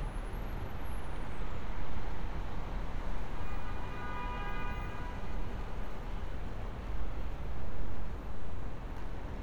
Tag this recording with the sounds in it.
car horn